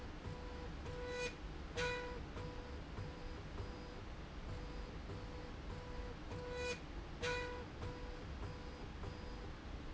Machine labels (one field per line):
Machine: slide rail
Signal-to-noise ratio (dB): 6 dB